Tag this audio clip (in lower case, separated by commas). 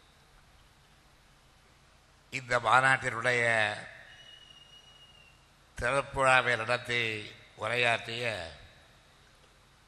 monologue, speech, male speech